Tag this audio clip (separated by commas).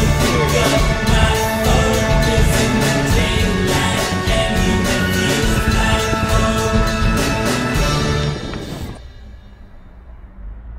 Roll, Music